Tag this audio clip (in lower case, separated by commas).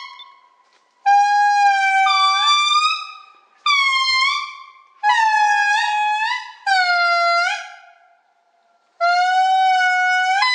outside, rural or natural, animal